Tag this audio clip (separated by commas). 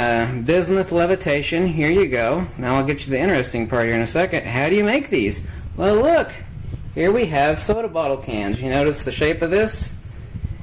Speech